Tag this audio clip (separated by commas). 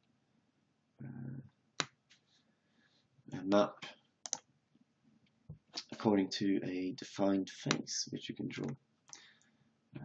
Speech